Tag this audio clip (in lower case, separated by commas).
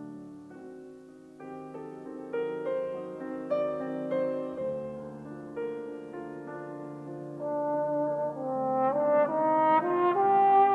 trumpet, music